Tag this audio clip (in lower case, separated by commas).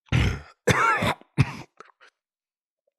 cough, respiratory sounds